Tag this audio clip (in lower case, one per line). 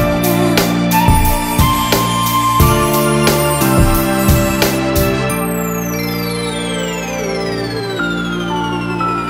music